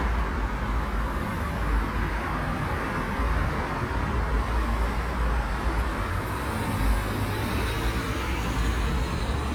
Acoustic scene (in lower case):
street